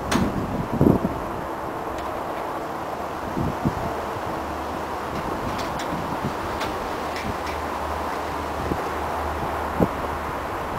Wind blows, traffic in the distance